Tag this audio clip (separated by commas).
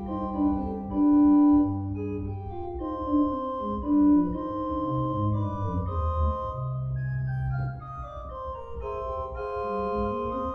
Piano, playing piano, Organ, Keyboard (musical), Music, Musical instrument